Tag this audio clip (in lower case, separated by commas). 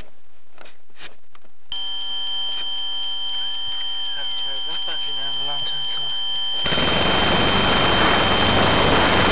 engine starting, speech, engine